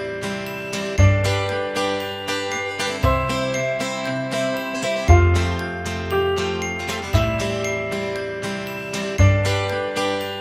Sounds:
Music

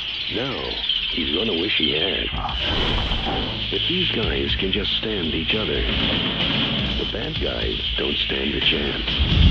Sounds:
Music, Speech

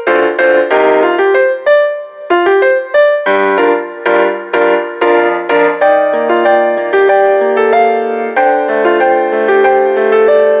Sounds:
Music

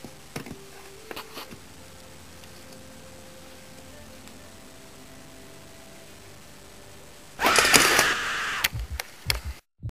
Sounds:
Music

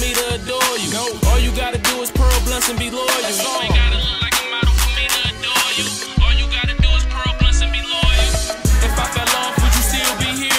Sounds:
Rapping, Music

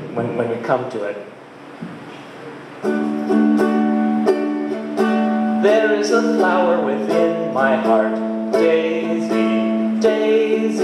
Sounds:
Speech, Music

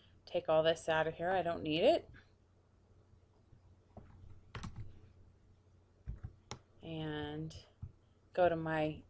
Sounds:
Clicking, Speech

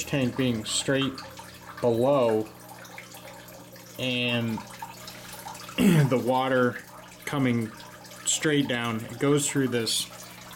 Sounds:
Speech

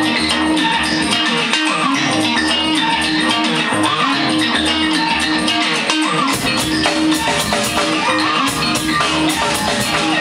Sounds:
Music

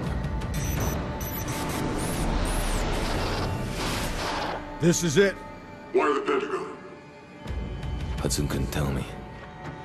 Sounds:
Speech, Music

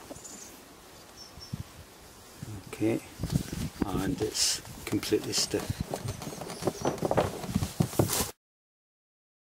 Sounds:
Silence, Speech, outside, urban or man-made

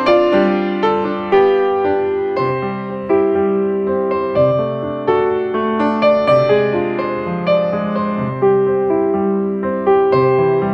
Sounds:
Music

